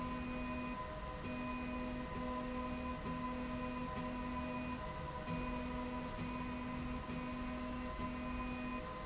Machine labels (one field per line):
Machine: slide rail